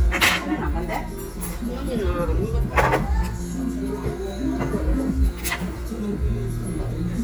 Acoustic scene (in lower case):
restaurant